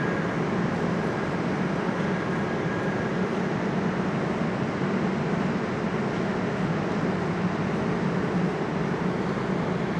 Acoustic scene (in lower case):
subway station